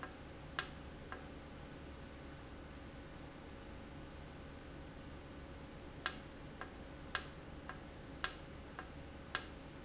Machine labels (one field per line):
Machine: valve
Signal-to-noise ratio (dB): 6 dB